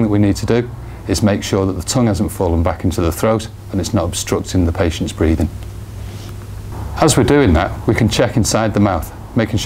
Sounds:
speech

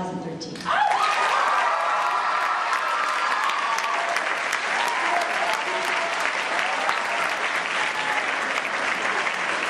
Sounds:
female speech
speech

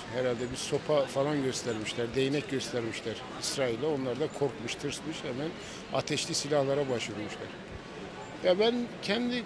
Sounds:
speech

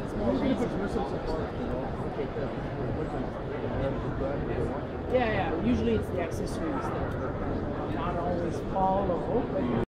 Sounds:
speech

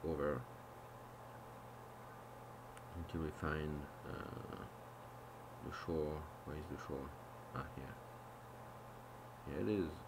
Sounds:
speech

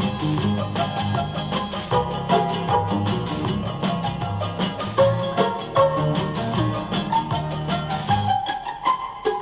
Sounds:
music
musical instrument

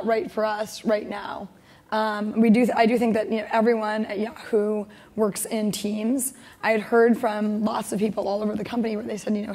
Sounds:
woman speaking

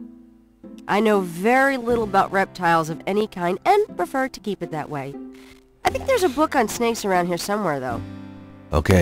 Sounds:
music
speech

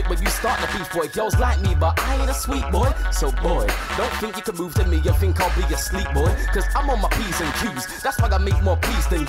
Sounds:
rapping
music

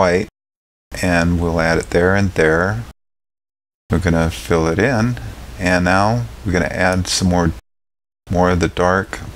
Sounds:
inside a small room
speech

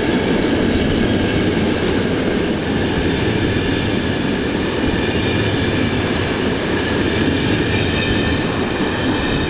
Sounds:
train
railroad car
vehicle
outside, urban or man-made

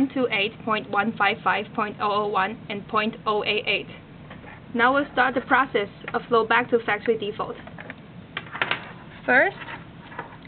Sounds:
speech

